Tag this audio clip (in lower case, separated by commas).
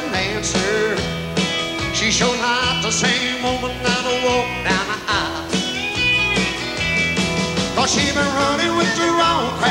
ska, music